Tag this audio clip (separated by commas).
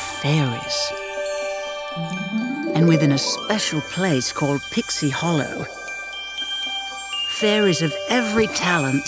Music, Speech